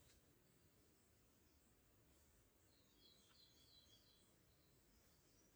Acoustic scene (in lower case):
park